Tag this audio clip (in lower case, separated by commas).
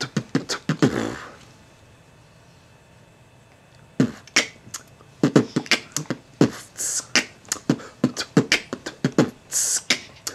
beatboxing